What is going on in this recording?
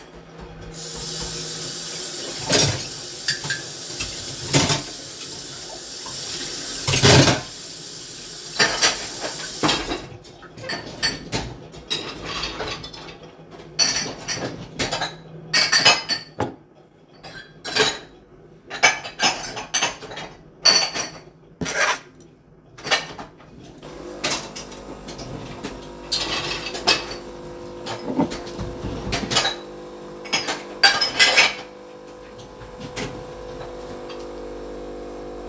I load the dishwasher while using the water to wash some cutlery. In the background the coffee machine starts making coffee